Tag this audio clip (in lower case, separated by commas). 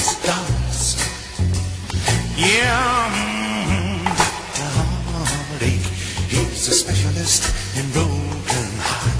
blues, music, soundtrack music, roll, dance music